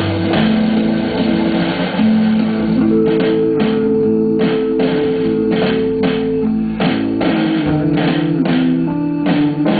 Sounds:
music, electric guitar, musical instrument, plucked string instrument, strum, guitar

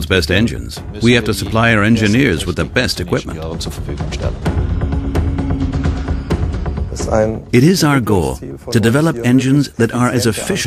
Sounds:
speech, music

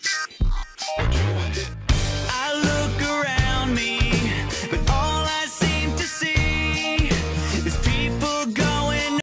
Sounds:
music

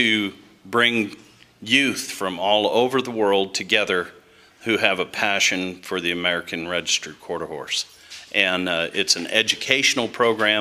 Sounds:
speech

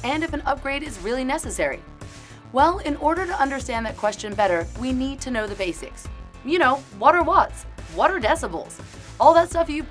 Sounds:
speech, music

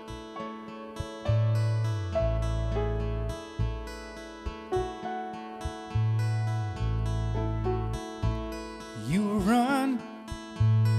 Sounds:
music

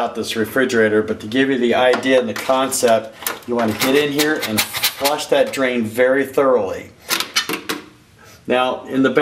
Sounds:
speech, inside a small room

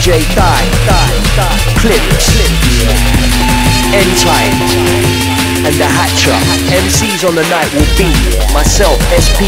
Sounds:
speech, music

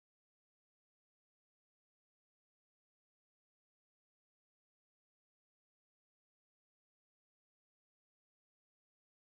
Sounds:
silence

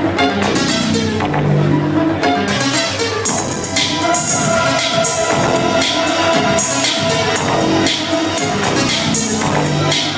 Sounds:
techno, electronic music, music, house music, electronica

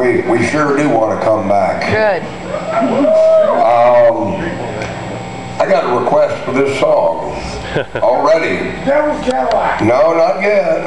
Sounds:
speech

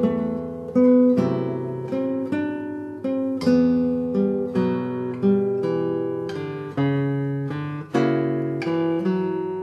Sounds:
acoustic guitar, strum, guitar, plucked string instrument, musical instrument, music

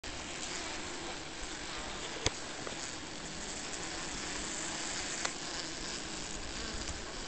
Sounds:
speech

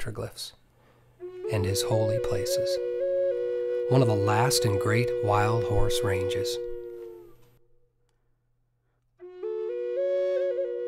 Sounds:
music, speech

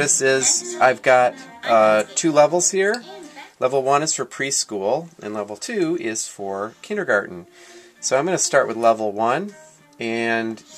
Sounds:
speech, music

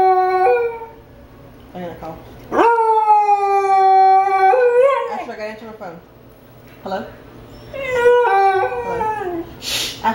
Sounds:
dog howling

